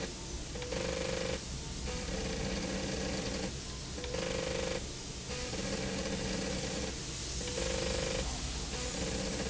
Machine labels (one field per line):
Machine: slide rail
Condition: abnormal